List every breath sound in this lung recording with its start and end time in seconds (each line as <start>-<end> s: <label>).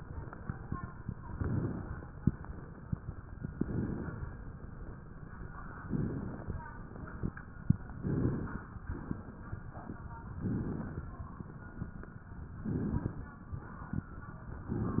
1.25-2.07 s: inhalation
1.25-2.07 s: crackles
3.42-4.23 s: inhalation
3.42-4.23 s: crackles
5.77-6.58 s: inhalation
5.77-6.58 s: crackles
7.91-8.73 s: inhalation
7.91-8.73 s: crackles
10.36-11.18 s: inhalation
10.36-11.18 s: crackles
12.54-13.36 s: inhalation
12.54-13.36 s: crackles